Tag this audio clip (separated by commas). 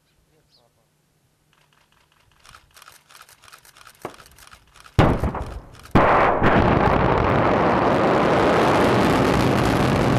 missile launch